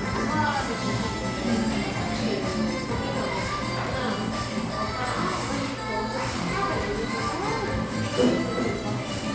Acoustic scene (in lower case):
cafe